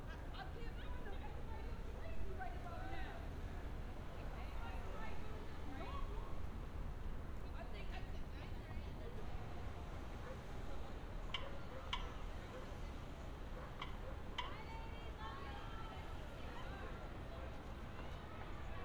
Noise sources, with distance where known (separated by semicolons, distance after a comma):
unidentified human voice